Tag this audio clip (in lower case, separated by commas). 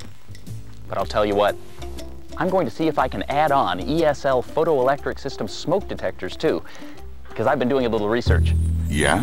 music, speech